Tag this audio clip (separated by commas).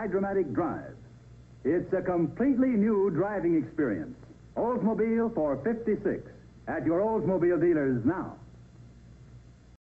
Speech